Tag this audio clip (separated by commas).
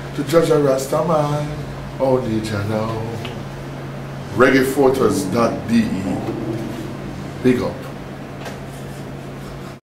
Speech